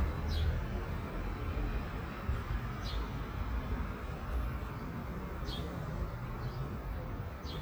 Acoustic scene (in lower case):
residential area